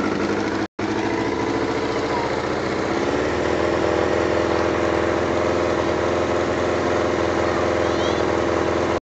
An engine idles and revs with people talking in the distance